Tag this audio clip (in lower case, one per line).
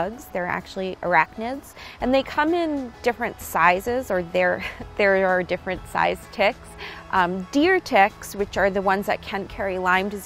speech
music